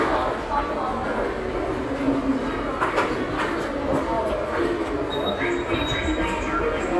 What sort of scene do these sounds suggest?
subway station